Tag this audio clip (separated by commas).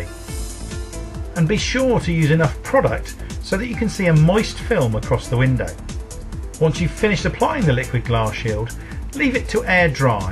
Speech, Music